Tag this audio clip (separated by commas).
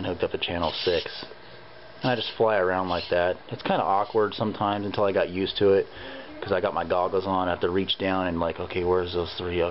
Speech